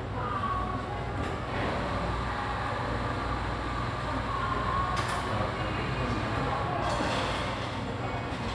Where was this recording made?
in a cafe